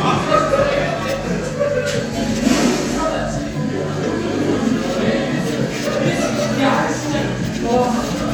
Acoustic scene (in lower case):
crowded indoor space